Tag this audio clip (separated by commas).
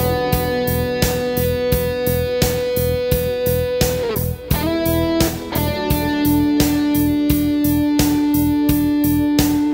Music